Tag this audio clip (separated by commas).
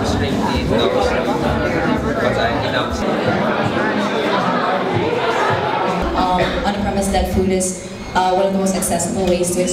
Speech, man speaking